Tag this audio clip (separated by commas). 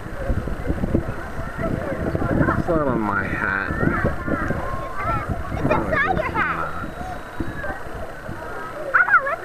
Speech